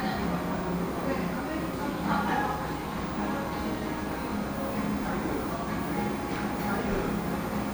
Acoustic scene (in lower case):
cafe